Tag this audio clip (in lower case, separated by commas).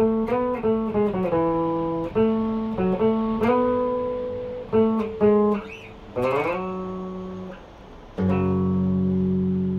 plucked string instrument, guitar, musical instrument, playing electric guitar, electric guitar, strum, music